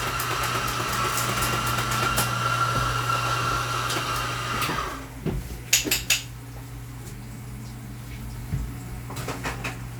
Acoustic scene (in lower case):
cafe